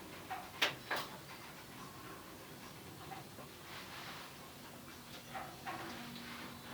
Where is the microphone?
in an elevator